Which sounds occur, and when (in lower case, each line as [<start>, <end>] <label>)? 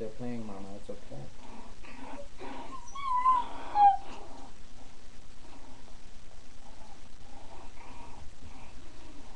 [0.00, 1.25] male speech
[0.00, 9.35] background noise
[3.66, 3.98] whimper (dog)
[8.46, 9.21] dog